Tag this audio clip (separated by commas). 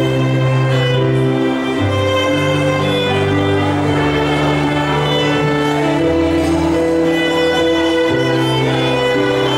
fiddle, Music, Musical instrument